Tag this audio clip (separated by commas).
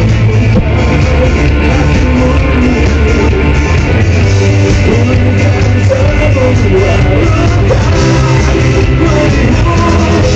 Pop music, Music